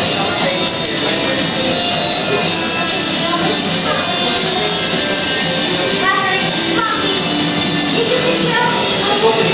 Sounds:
Speech, Music

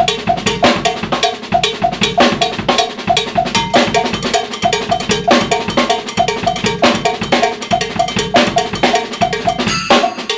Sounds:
Music

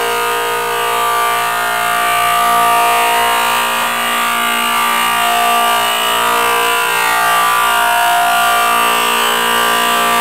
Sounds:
planing timber

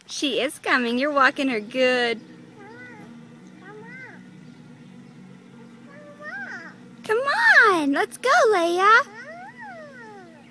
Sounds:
Speech

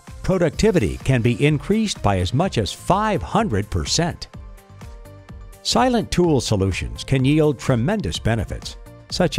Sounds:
Music, Speech

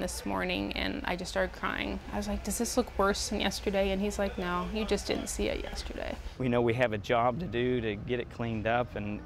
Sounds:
Speech

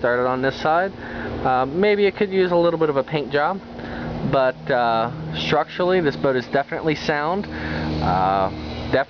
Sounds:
Speech

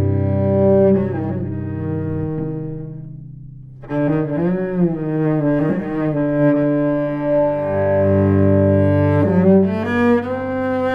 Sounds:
Bowed string instrument, Cello, playing cello

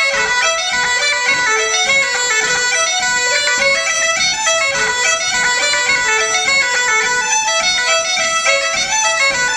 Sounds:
Wind instrument, Bagpipes

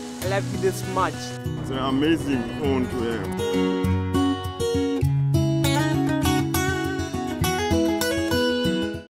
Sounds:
Music, Speech

